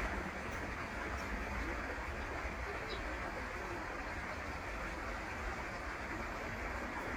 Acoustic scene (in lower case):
park